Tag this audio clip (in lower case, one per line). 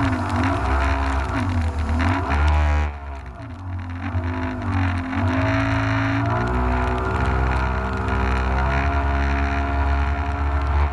vehicle